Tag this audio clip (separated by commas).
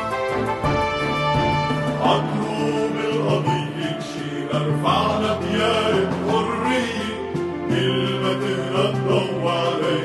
Music